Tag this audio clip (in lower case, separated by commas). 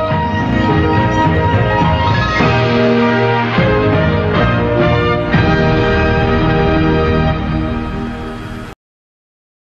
television, music